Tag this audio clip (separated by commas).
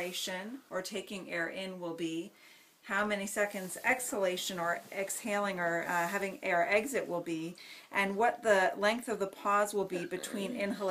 Speech